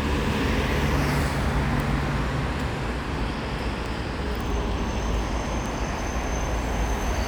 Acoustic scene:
street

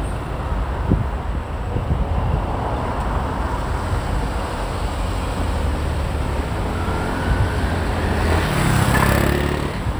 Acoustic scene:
street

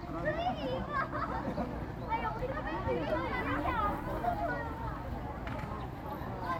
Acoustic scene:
park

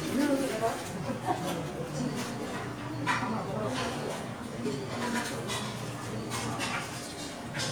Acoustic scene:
restaurant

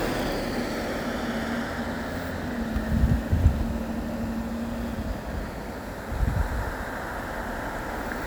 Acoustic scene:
street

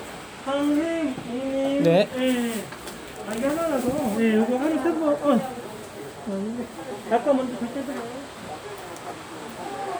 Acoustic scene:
crowded indoor space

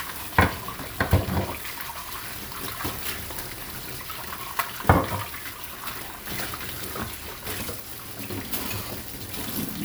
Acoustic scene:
kitchen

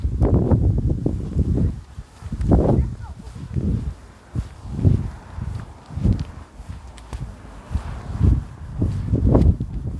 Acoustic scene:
park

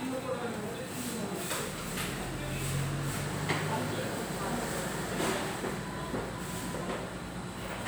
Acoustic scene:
restaurant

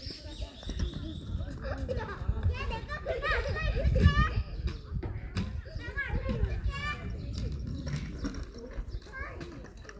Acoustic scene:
park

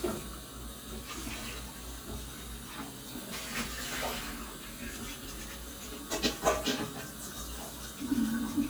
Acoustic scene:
kitchen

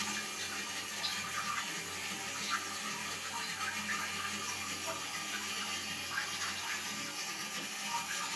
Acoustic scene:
restroom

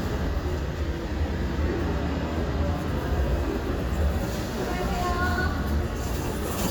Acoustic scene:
residential area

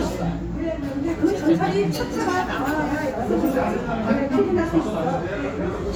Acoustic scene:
restaurant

